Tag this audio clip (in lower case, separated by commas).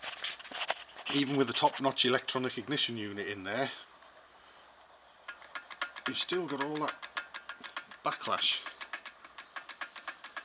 speech